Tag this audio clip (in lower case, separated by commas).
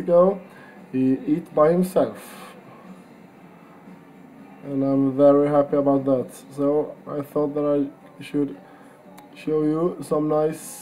speech